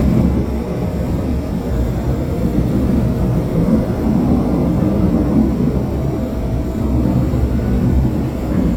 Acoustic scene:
subway train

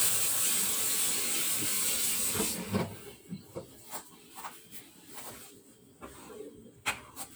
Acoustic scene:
kitchen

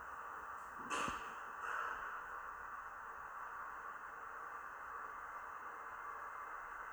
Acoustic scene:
elevator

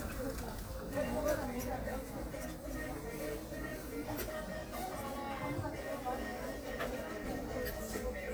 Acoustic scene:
crowded indoor space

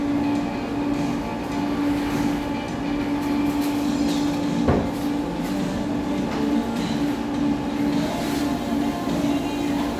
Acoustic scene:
cafe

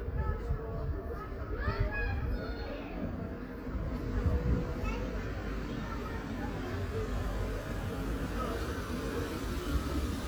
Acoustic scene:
residential area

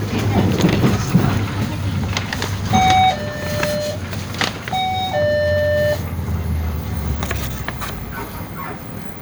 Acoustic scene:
bus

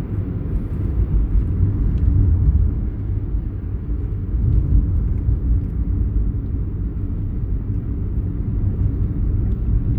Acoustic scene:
car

